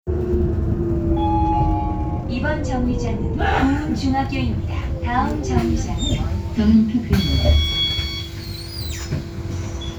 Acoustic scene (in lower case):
bus